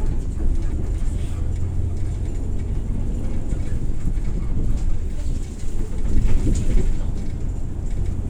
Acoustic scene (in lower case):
bus